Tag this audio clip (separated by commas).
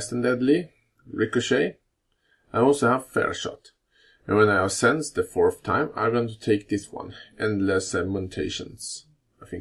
Speech